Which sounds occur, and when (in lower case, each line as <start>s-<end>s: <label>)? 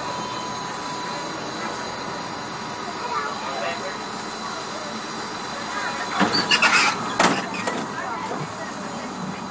0.0s-9.5s: motor vehicle (road)
2.8s-8.5s: conversation
2.9s-3.3s: child speech
3.4s-4.0s: male speech
4.7s-5.1s: child speech
5.6s-6.2s: child speech
6.1s-6.9s: generic impact sounds
6.6s-6.9s: child speech
7.2s-7.8s: generic impact sounds
7.4s-7.7s: child speech
7.8s-9.1s: female speech